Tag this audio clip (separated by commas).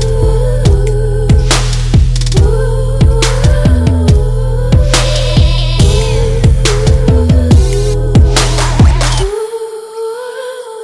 Music